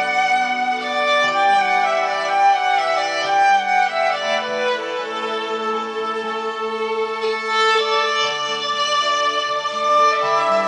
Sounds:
Musical instrument, Music, fiddle

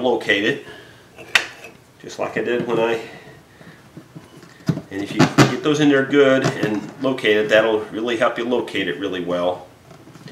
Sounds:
inside a small room, Wood, Speech

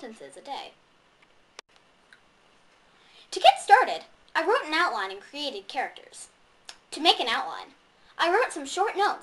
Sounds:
Speech

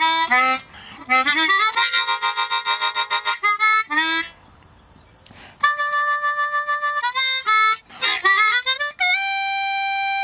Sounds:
Musical instrument, Harmonica, Music

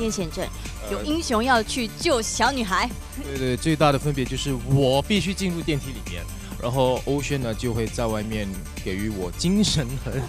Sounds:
Speech, Music

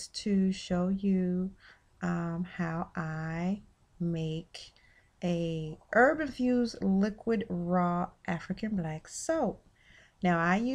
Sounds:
Speech

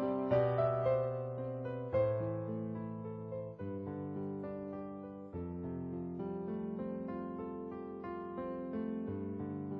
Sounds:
Music, Electric piano

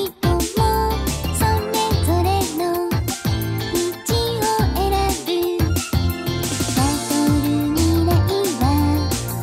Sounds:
Music

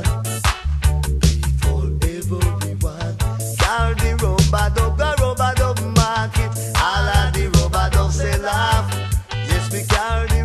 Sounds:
Music, Reggae

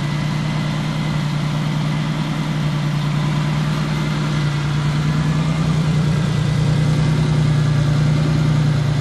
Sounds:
Vehicle

